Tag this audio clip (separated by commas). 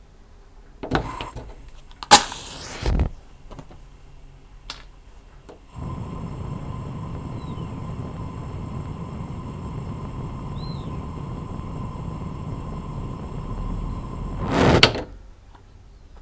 Fire